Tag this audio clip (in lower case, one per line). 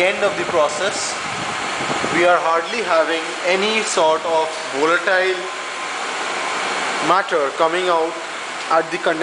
inside a large room or hall
speech